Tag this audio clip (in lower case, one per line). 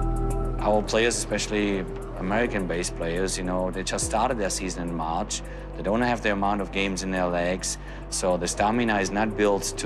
music
speech